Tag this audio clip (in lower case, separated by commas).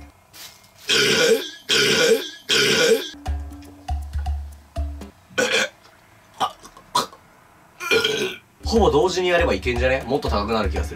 people burping